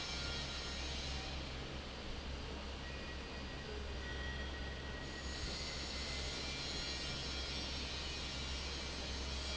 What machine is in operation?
fan